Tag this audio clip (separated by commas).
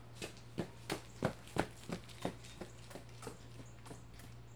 Run